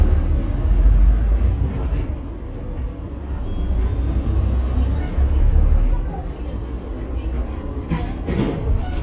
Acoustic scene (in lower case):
bus